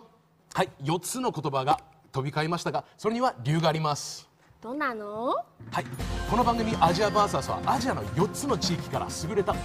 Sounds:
speech, music

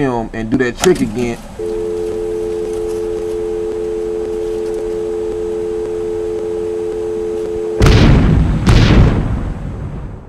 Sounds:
speech

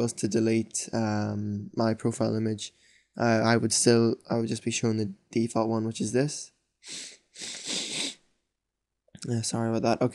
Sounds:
speech, inside a small room

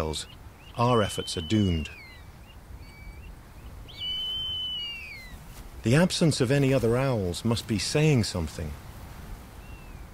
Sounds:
bird, tweet, owl, bird song

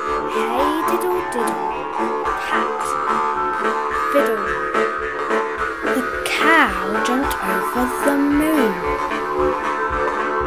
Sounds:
speech, music

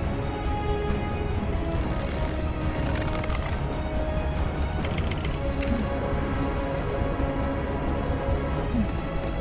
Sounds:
music

